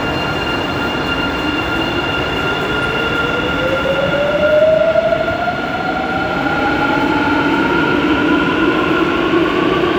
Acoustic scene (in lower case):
subway station